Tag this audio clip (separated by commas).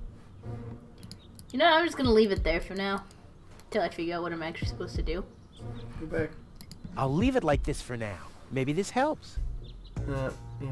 Speech, Bird, Music